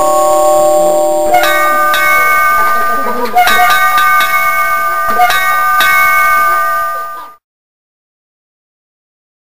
Multiple bell tones